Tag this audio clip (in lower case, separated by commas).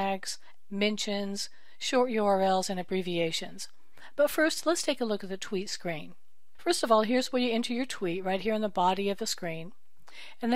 speech